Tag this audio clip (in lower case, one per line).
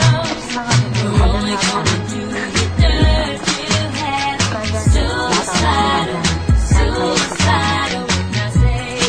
speech
music